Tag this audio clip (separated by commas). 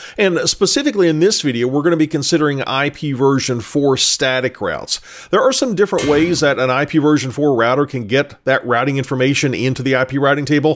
Speech